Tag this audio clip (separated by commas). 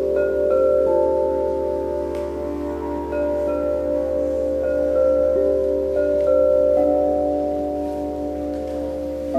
Singing bowl, Music, Musical instrument